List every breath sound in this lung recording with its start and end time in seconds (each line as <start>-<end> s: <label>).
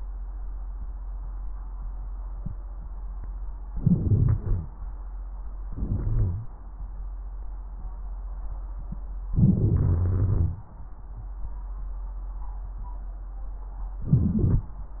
3.70-4.41 s: inhalation
4.42-4.71 s: exhalation
4.42-4.71 s: wheeze
5.70-6.50 s: inhalation
5.87-6.50 s: wheeze
9.38-10.68 s: inhalation
9.89-10.68 s: wheeze
14.05-14.70 s: inhalation
14.05-14.70 s: wheeze